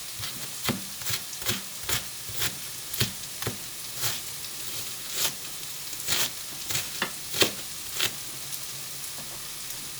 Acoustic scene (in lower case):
kitchen